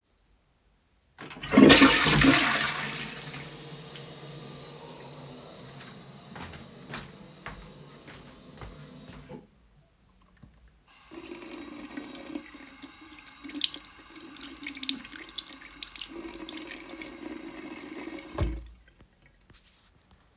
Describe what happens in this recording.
I flushed the toilet and walked to the sink, then washed my hands.